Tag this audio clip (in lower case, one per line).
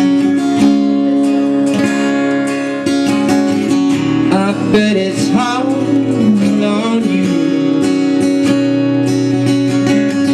music